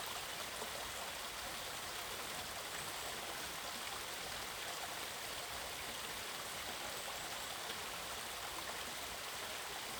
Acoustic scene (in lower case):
park